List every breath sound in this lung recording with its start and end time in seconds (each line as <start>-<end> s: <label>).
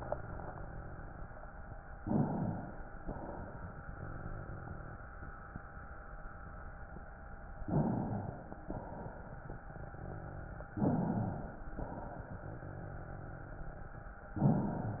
1.93-3.00 s: inhalation
3.03-5.03 s: exhalation
7.62-8.65 s: inhalation
8.64-10.58 s: exhalation
10.73-11.74 s: inhalation